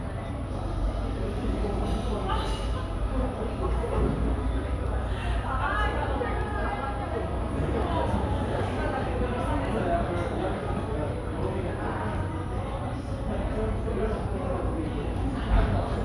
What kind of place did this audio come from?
cafe